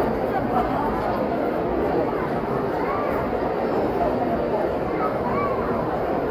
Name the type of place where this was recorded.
crowded indoor space